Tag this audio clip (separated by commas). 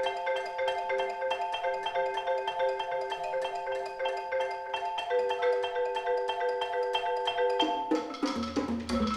Percussion, Drum